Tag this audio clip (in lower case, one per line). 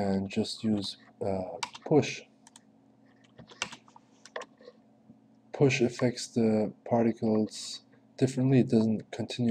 speech